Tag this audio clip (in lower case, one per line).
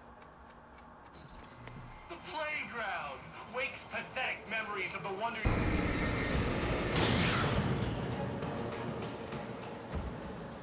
speech
music